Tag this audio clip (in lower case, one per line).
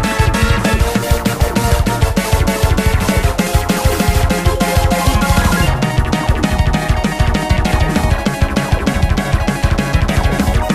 video game music
funk
music